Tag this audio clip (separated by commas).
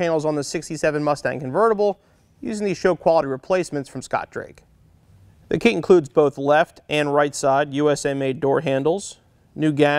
Speech